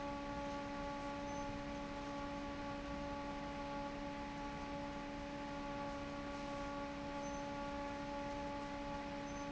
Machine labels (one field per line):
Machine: fan